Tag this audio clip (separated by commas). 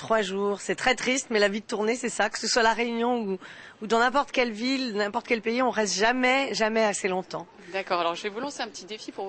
Speech